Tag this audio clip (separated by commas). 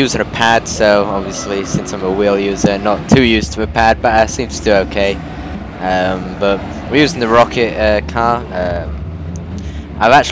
Car, Vehicle, Speech